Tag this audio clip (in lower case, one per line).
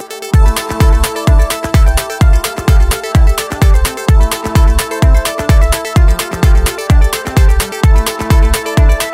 music